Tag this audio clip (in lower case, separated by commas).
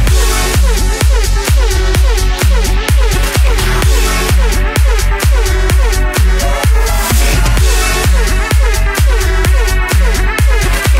music